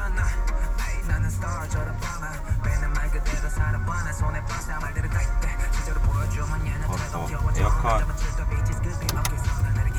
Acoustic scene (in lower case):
car